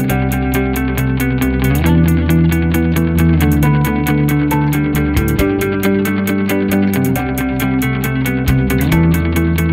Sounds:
Music

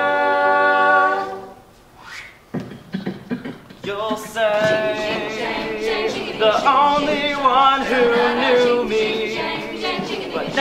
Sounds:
Singing, Vocal music, A capella, Choir, Music

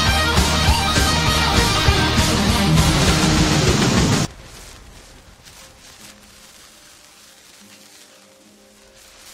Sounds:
Music

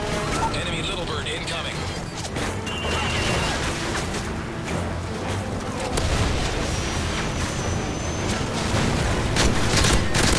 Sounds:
Music, Speech

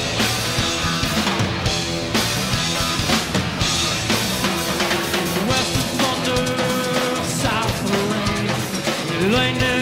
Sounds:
Sound effect, Music

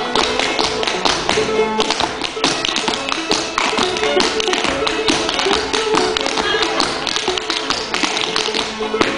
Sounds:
Musical instrument, Music

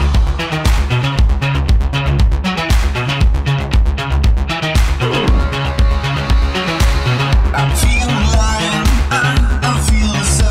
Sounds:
Music

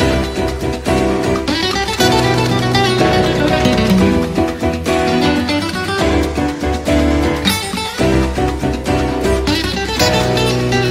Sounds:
Music

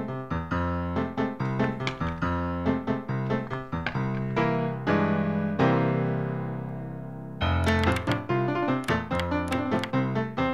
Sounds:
Music

